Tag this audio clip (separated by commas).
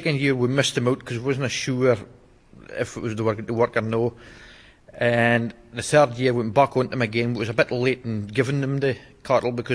Speech